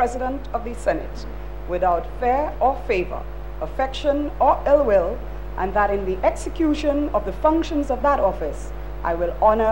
A woman is giving a speech